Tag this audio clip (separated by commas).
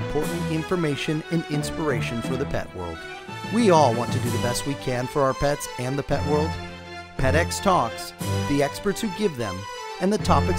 Music, Speech